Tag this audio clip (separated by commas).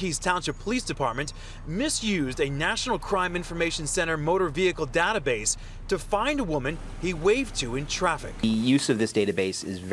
Speech